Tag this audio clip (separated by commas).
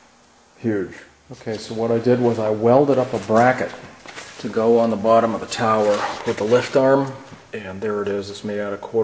Speech